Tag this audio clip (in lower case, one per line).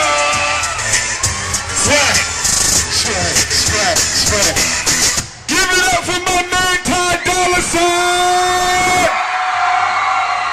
inside a large room or hall
music
singing
speech